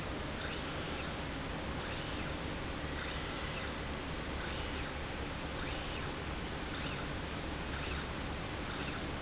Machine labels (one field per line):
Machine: slide rail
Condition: normal